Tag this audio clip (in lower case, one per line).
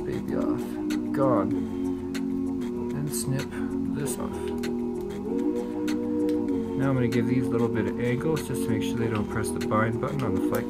music
speech